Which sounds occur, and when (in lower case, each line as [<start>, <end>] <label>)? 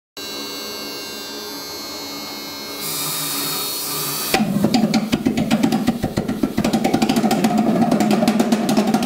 [0.14, 9.05] mechanisms